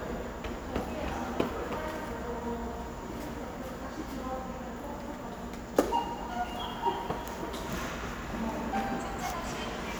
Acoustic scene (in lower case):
subway station